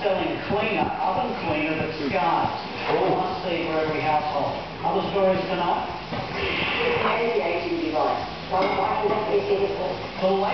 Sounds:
Speech

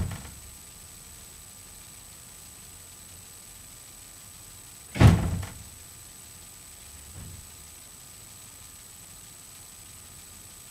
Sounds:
door slamming

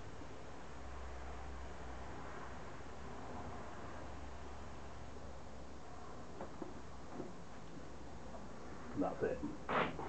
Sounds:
Speech

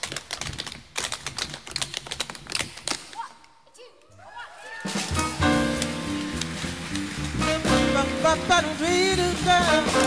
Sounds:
Tap, Music, Speech

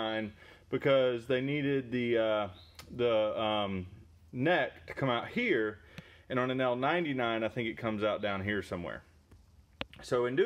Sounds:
running electric fan

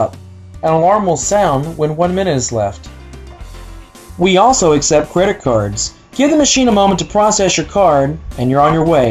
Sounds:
Music, Speech

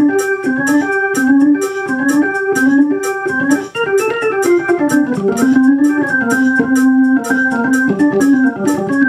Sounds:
Organ

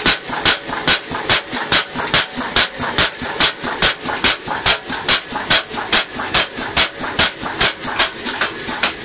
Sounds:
hammering nails

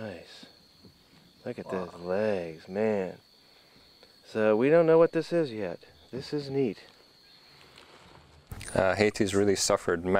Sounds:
Speech

